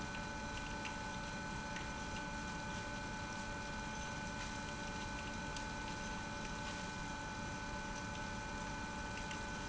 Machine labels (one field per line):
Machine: pump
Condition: abnormal